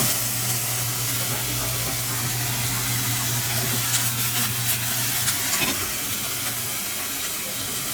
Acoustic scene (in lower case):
kitchen